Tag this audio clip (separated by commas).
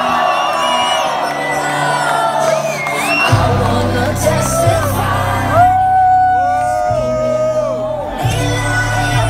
Pop music, Music, Exciting music